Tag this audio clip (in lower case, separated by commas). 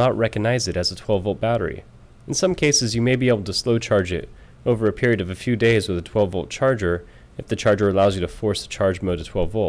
speech